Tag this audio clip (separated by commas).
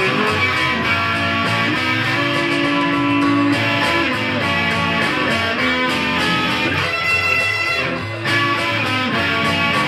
Musical instrument, Electric guitar, Strum, Music, Guitar, Plucked string instrument